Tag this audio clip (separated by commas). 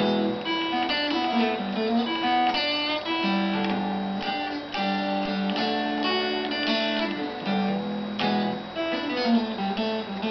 Musical instrument, Plucked string instrument, Acoustic guitar, Strum, playing acoustic guitar, Music, Guitar